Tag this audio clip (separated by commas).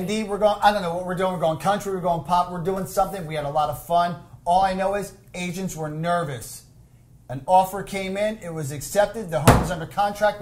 Speech